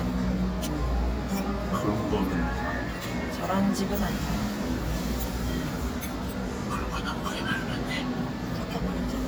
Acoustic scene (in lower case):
cafe